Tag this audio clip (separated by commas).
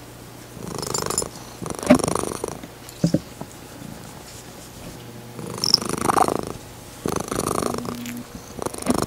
cat purring